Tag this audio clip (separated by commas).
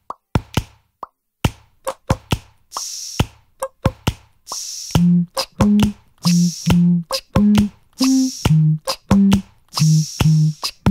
Music